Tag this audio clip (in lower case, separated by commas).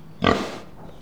livestock, animal